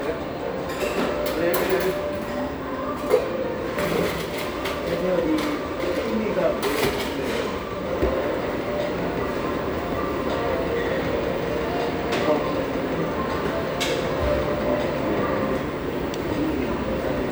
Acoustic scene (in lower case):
restaurant